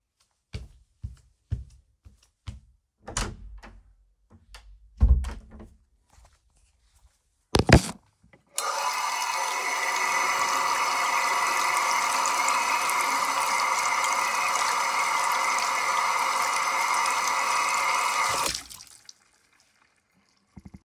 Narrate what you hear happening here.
I walk into the bathroom and open the door. After entering, I turn on the water and wash my hands for a few seconds.